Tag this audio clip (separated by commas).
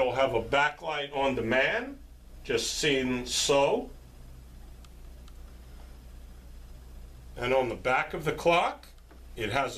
Speech